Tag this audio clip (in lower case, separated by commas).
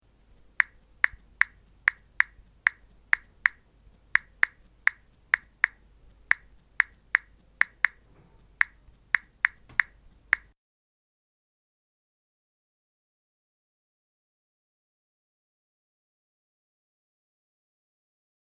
domestic sounds, telephone, alarm, typing